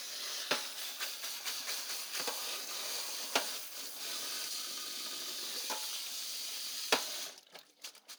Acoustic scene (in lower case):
kitchen